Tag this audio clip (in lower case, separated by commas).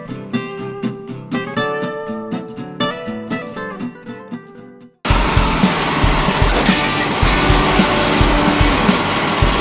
music